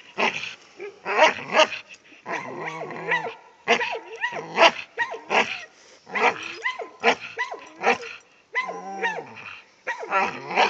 Dog barking and growling then a second dog barking in a higher pitch at the same time